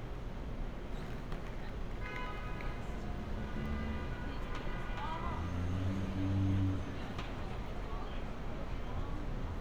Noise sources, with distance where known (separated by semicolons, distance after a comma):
car horn